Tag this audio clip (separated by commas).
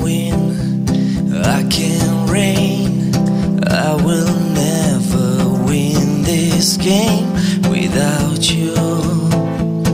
Music, Radio